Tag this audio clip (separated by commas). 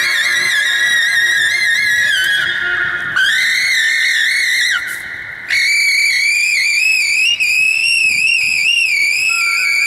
Saxophone, Music, footsteps